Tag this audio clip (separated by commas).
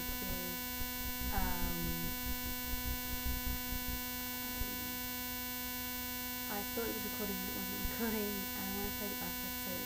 Speech